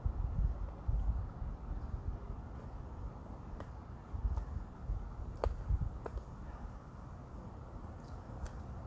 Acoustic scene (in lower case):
park